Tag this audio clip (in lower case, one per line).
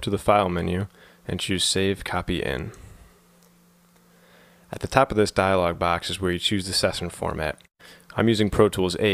speech